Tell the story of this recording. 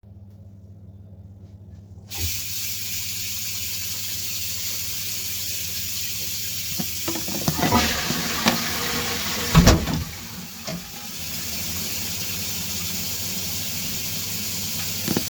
I turned on the water, flushed the toilet and opened the door.